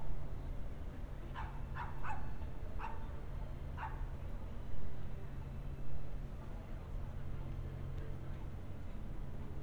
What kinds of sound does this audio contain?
dog barking or whining